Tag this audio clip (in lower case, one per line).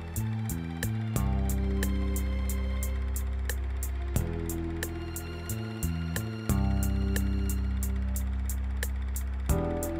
music